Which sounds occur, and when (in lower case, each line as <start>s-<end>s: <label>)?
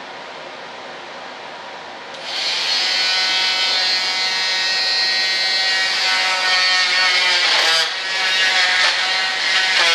0.0s-9.9s: mechanisms
2.1s-2.2s: tick
2.1s-9.9s: power tool